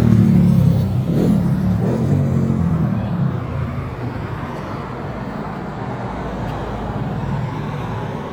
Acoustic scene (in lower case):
street